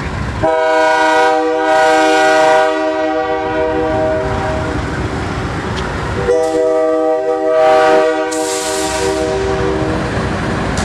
Train horn honking